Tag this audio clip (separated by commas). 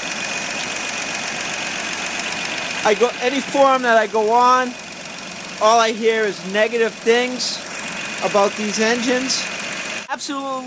Engine, Speech, Idling, Vehicle